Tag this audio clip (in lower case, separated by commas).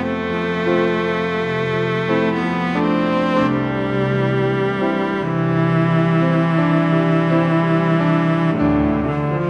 cello, bowed string instrument